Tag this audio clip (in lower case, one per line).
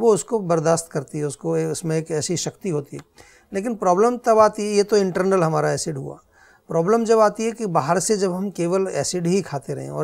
speech